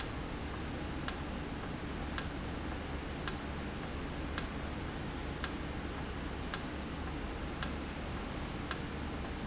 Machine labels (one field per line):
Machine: valve